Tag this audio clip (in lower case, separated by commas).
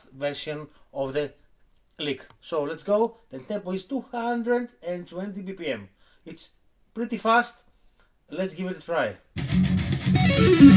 music, tapping (guitar technique), speech